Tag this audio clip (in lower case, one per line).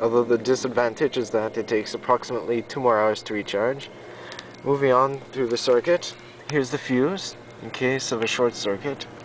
speech